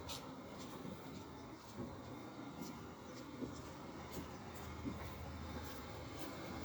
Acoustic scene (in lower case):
residential area